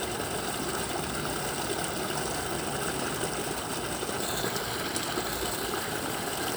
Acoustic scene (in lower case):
park